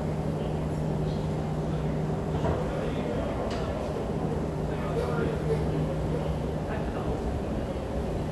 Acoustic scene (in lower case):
street